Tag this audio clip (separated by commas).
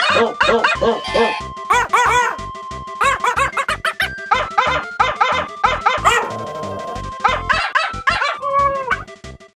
Music, Bow-wow